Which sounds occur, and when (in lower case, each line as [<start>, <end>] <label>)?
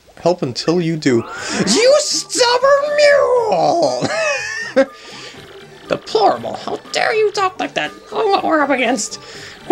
[0.00, 0.62] water
[0.00, 9.71] music
[0.10, 1.33] man speaking
[1.18, 1.95] sound effect
[1.59, 4.12] man speaking
[4.03, 4.88] laughter
[4.90, 5.47] breathing
[5.87, 9.22] man speaking
[9.21, 9.64] breathing